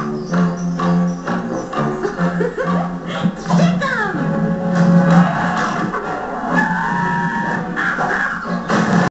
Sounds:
Speech, Music

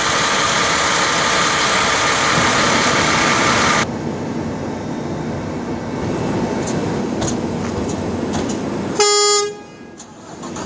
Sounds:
outside, urban or man-made, Truck, Vehicle

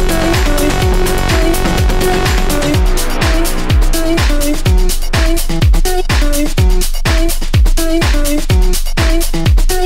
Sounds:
Disco, Music

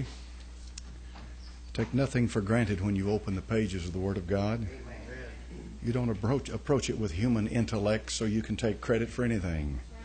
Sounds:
Speech

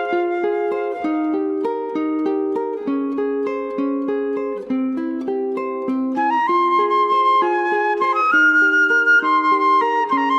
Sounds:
Music

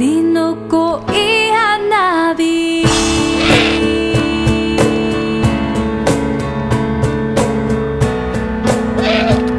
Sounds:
Owl

